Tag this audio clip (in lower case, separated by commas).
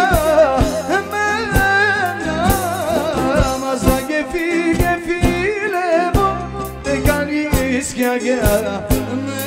music